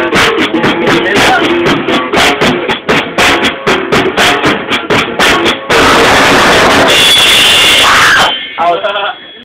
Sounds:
speech, music

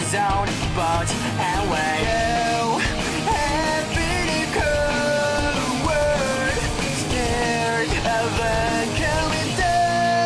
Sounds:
punk rock, music

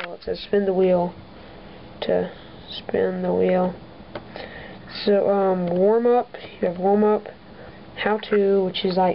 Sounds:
speech

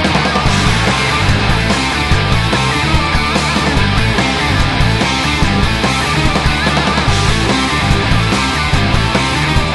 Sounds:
music

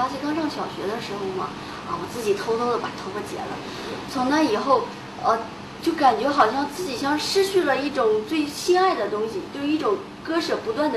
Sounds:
speech

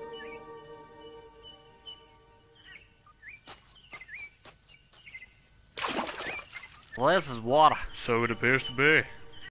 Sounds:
speech, liquid

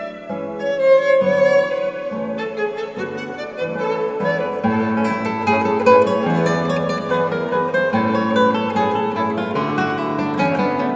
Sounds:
music, violin, musical instrument

